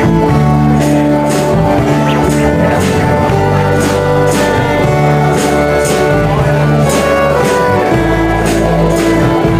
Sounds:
Sound effect, Music, Speech

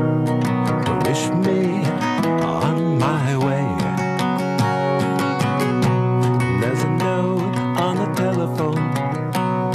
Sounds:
Music

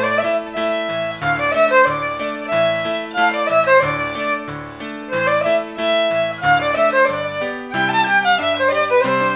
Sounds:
Music, Musical instrument, fiddle

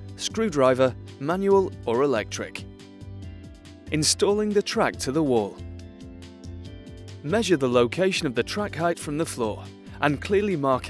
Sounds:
Music, Speech

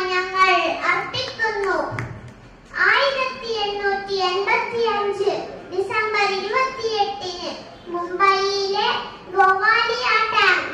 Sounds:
Child speech, Speech, woman speaking

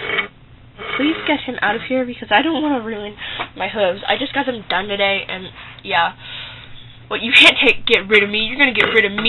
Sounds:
inside a small room, Speech

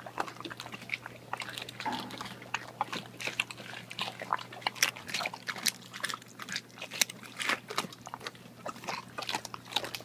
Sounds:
Water

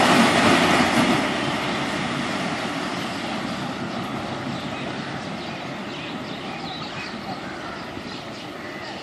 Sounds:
Animal, Speech

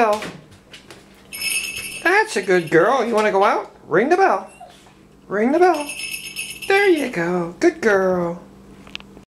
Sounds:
Speech

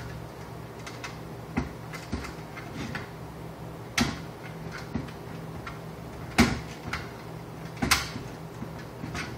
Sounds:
inside a small room

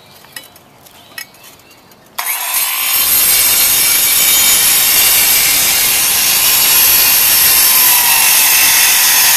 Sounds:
outside, rural or natural

